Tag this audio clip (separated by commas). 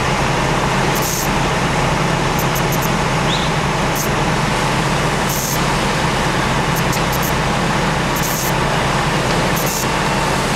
outside, urban or man-made, Fire